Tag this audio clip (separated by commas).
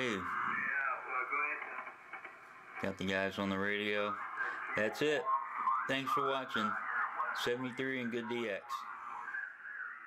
Radio, Speech